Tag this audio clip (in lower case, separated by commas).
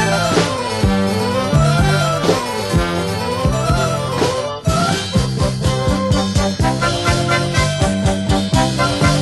swing music, music